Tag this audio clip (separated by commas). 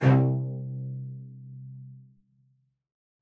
Musical instrument, Bowed string instrument, Music